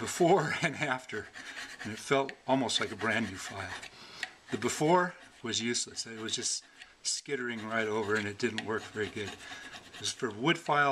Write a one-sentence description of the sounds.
A man is talking and rubbing something